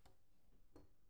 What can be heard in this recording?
wooden cupboard opening